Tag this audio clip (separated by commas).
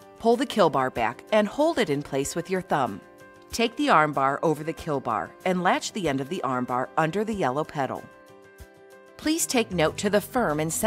Speech, Music